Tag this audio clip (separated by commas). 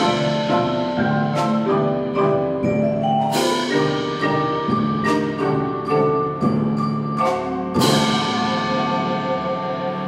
Glockenspiel, Mallet percussion, Marimba